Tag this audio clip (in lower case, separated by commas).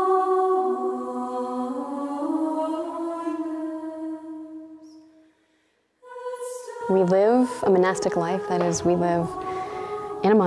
music, speech